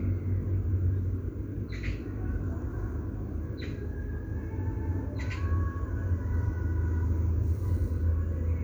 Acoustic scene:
park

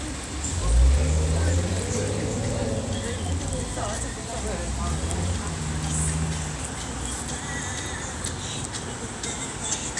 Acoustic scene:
street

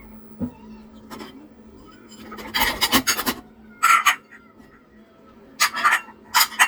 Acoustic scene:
kitchen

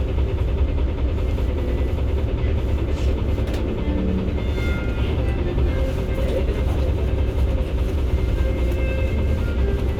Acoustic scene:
bus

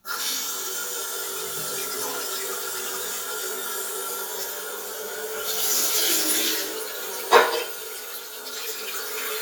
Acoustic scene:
restroom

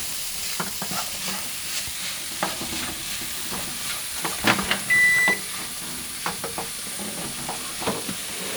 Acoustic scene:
kitchen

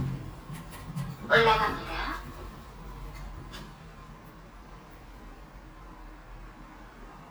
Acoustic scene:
elevator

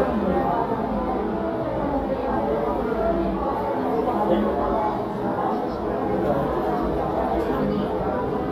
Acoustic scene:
crowded indoor space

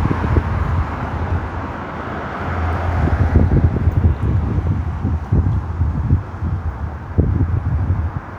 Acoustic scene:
street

